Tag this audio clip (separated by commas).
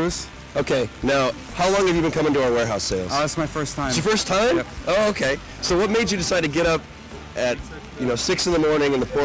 Speech